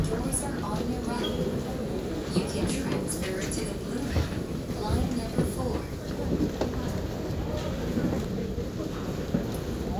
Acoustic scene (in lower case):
subway train